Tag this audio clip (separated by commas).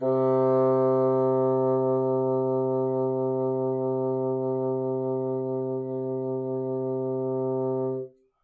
Music, Musical instrument, Wind instrument